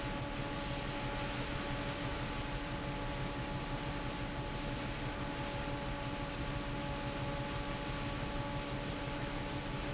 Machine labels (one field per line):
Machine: fan